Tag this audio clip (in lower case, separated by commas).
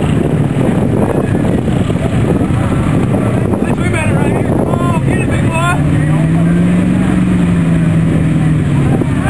speech, car, vehicle